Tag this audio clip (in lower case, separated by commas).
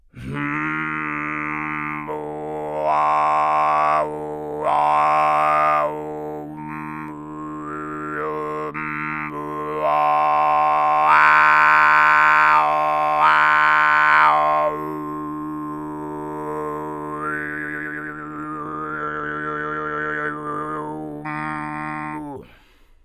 singing, human voice